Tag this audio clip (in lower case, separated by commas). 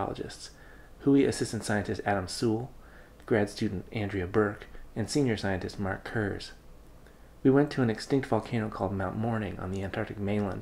speech